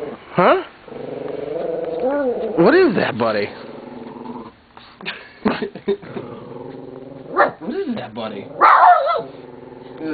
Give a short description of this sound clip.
A dog growls while his owner speaks to him